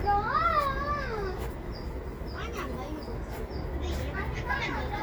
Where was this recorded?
in a residential area